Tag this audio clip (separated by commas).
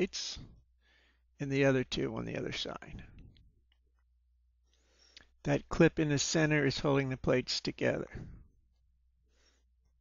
Speech